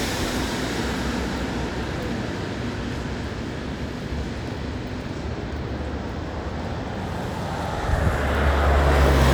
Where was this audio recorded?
on a street